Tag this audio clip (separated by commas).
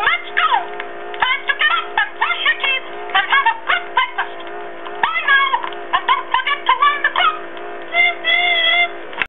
Speech